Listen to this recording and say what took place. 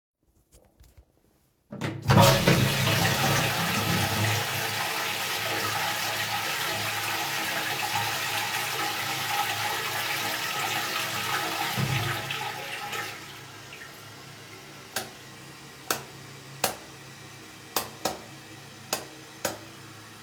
I flushed the toilet and then I flickered the light switch